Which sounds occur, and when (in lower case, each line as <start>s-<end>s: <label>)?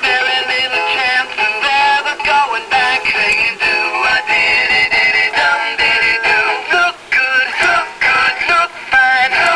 0.0s-9.5s: background noise
0.0s-9.5s: music
8.9s-9.5s: synthetic singing